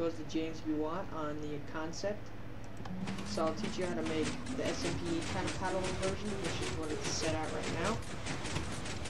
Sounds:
speech

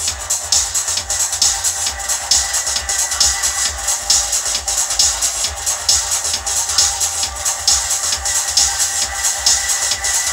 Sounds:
rustle
music

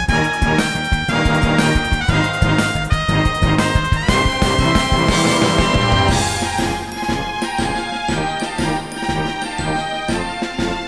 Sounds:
music

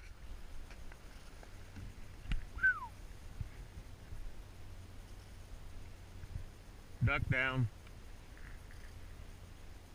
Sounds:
quack
animal

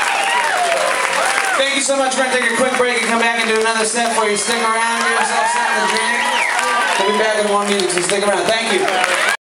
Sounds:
male speech

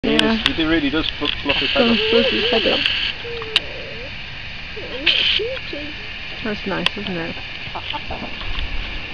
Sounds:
bird
speech

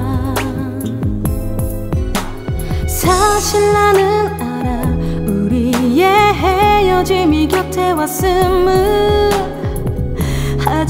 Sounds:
music

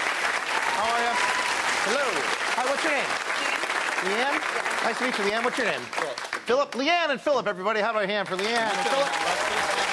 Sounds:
speech

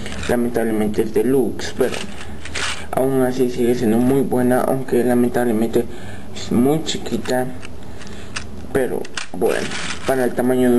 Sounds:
speech

